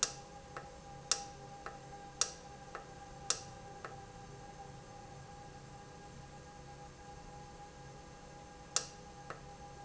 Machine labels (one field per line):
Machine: valve